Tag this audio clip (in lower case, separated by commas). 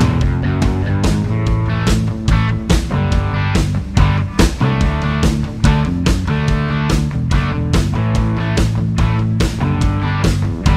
guitar, musical instrument, music